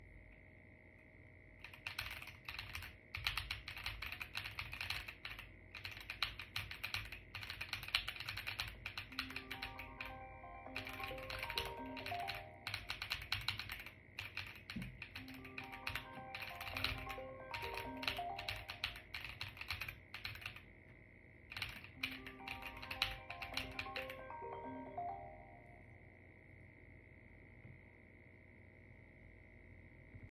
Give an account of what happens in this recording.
I held the phone near my desk while working. I typed on the keyboard for several seconds. During the typing the phone started ringing nearby. The ringing overlaps clearly with the keyboard sounds.